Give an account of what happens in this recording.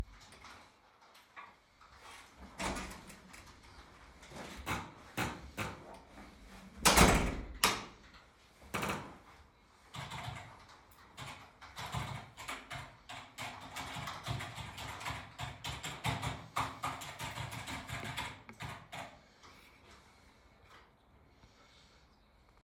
I opened the office door and entered the room. After entering I turned on the light switch. I sat down at the desk and typed on the keyboard for several seconds before stopping.